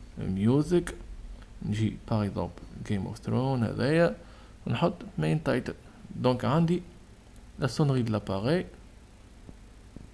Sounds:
Speech

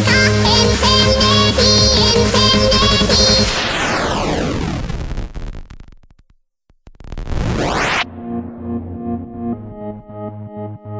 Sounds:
Music

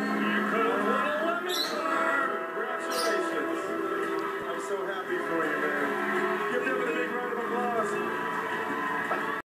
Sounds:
Music, Speech

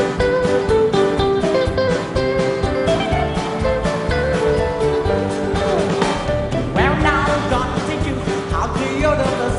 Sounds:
Music of Asia, Music

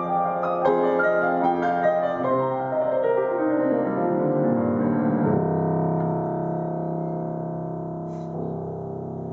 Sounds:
Keyboard (musical), Piano, playing piano

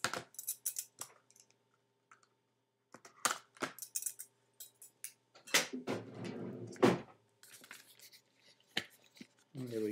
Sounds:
inside a small room, Speech

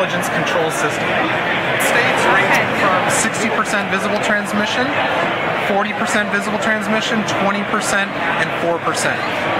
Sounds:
Speech

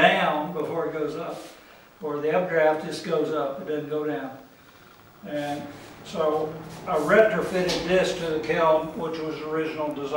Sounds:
Speech

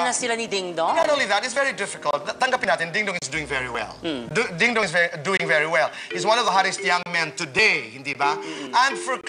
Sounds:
Music, Speech

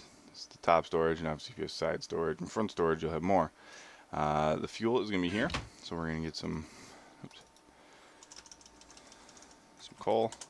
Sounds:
Computer keyboard

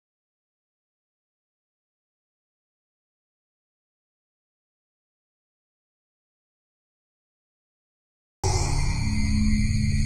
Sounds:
Music

